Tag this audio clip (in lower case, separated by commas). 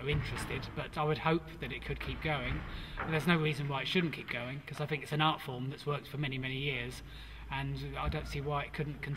speech